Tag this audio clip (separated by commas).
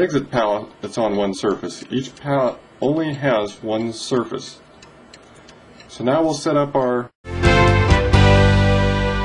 Music